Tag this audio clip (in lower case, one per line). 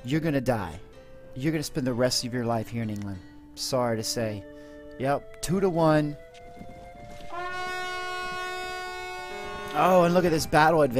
siren